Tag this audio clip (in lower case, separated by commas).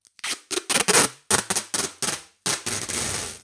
home sounds, packing tape